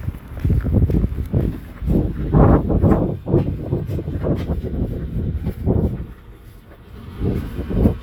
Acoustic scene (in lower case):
residential area